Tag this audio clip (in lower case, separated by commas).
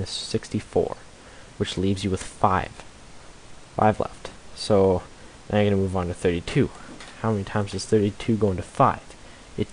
speech